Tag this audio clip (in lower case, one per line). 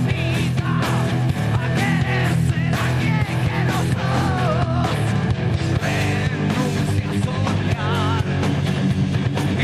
pop music
music
blues